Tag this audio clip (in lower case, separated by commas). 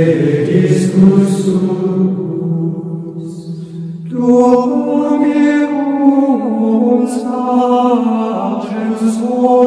music, mantra